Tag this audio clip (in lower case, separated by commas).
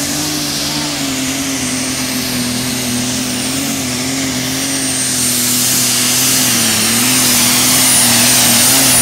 vehicle, truck